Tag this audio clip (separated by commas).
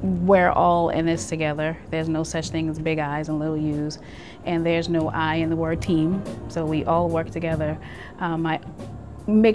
Speech, Music